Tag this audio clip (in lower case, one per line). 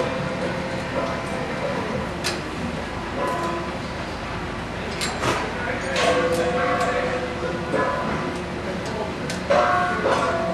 speech